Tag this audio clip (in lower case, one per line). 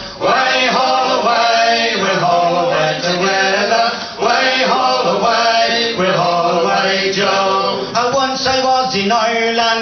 music